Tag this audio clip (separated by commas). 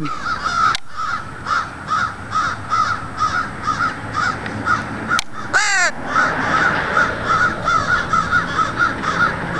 crow cawing